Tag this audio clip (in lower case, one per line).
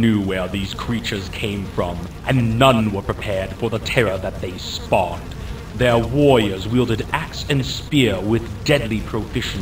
speech